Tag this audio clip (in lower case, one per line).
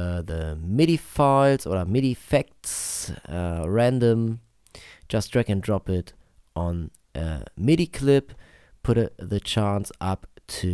speech